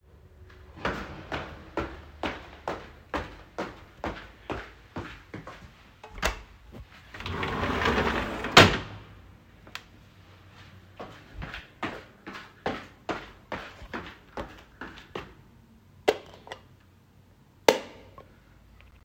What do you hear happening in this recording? Walking to window, opening it, walking again, and flipping light switch on and off.